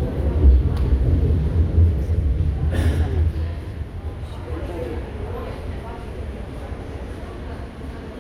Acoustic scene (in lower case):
subway station